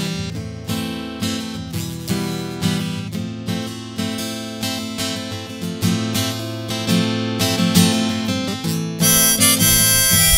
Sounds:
Guitar, Musical instrument, Plucked string instrument, Acoustic guitar, Music

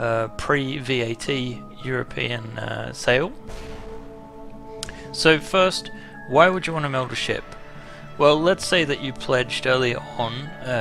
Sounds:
Speech, Music

